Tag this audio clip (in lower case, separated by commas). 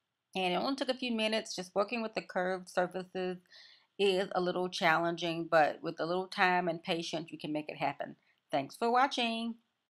speech